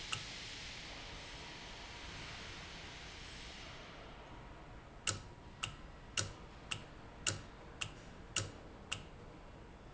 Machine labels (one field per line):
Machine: valve